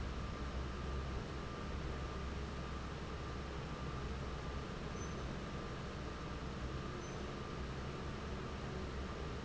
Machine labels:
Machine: fan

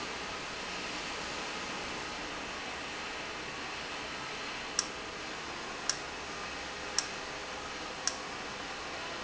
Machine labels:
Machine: valve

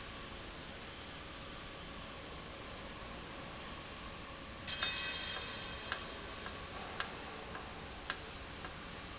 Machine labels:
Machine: valve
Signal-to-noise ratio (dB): 0 dB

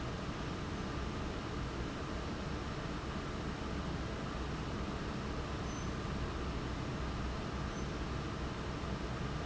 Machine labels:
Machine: fan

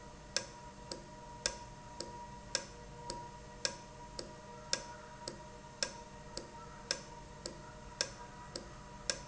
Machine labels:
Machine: valve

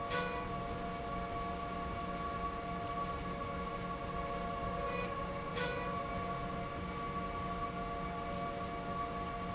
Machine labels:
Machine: slide rail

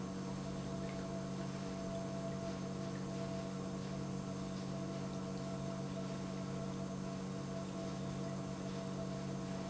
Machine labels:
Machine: pump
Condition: normal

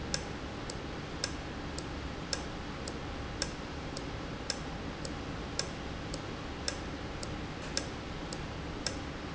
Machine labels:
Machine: valve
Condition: normal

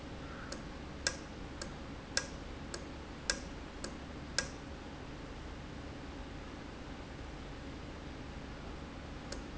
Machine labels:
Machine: valve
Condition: normal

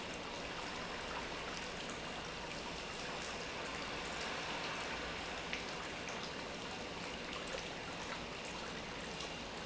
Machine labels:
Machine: pump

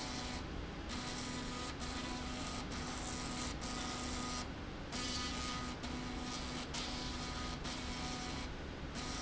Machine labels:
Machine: slide rail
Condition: abnormal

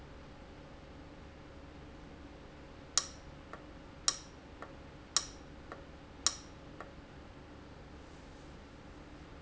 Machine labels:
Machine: valve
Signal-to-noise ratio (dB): 6 dB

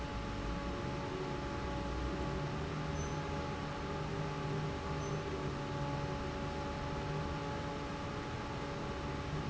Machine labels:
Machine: fan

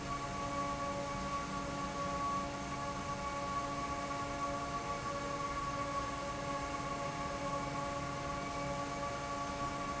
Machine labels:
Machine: fan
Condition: normal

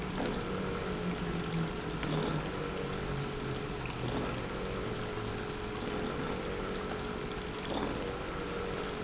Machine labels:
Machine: pump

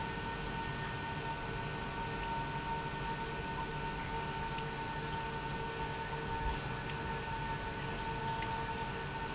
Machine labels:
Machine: pump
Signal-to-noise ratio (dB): -6 dB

